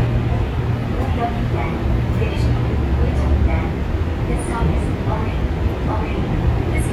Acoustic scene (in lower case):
subway train